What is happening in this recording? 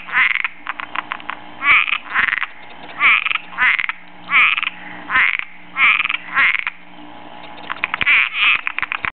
Frogs croaking near and far